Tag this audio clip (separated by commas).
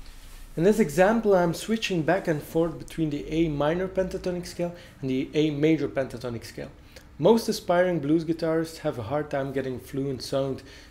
Speech